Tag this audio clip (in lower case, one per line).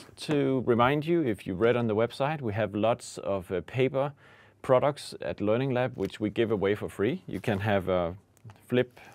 speech